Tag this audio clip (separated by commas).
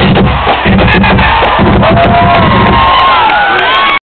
Music